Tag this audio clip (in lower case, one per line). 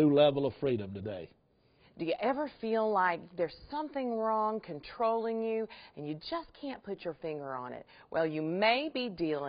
speech